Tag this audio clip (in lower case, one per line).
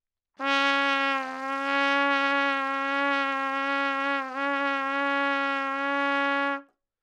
music
brass instrument
trumpet
musical instrument